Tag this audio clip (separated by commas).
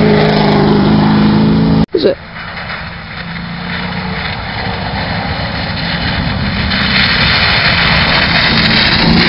Speech